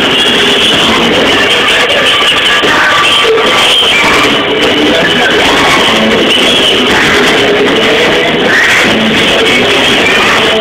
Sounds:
speech, music

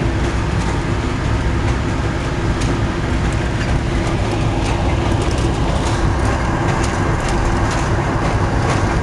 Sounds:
vehicle

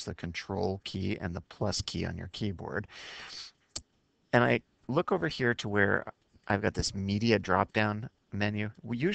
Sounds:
speech

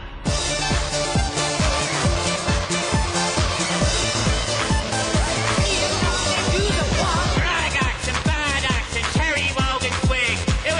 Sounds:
music

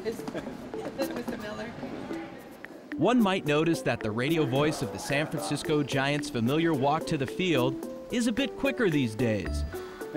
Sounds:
speech, music, inside a public space

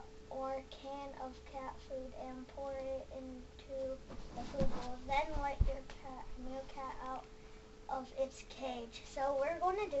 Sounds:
speech

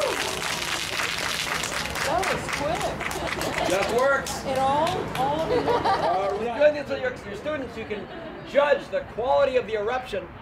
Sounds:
speech

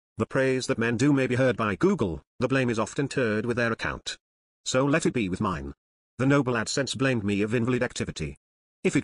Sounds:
speech, speech synthesizer

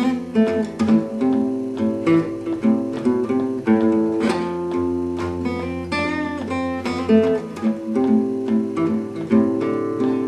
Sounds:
music, musical instrument, guitar, acoustic guitar, bowed string instrument, plucked string instrument

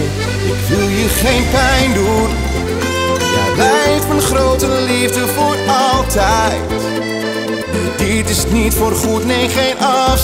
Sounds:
music

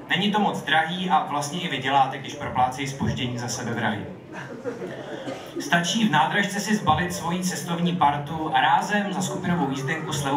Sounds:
speech

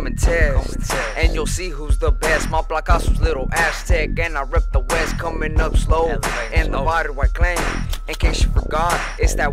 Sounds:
music

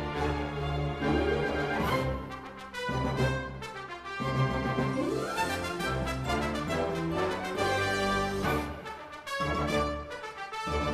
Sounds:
music

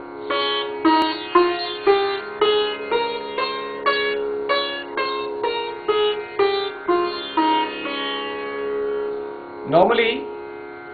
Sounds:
playing sitar

